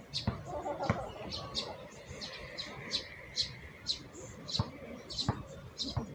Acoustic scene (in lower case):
park